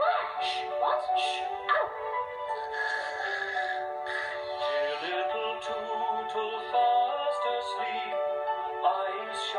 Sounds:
music

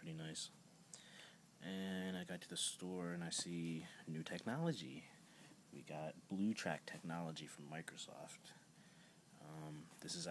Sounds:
speech

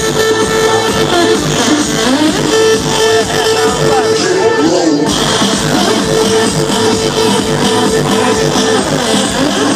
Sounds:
dance music
speech
music

